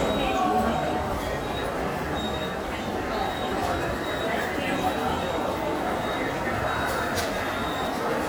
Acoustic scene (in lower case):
subway station